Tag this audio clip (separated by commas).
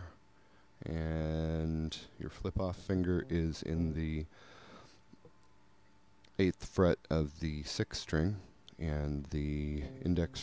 Speech